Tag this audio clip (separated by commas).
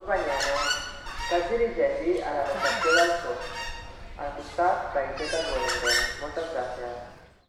Human voice